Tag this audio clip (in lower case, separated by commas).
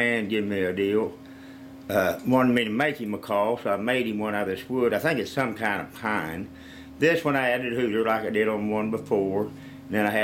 speech